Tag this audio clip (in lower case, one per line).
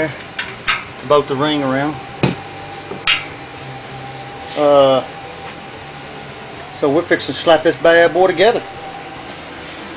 speech